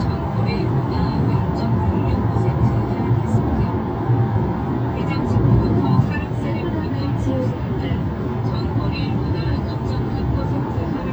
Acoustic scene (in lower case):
car